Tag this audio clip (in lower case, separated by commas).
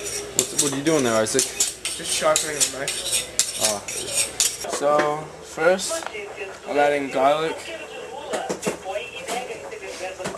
speech